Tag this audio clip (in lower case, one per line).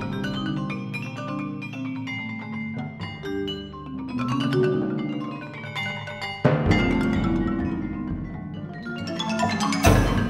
xylophone